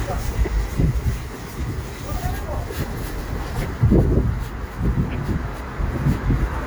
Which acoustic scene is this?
street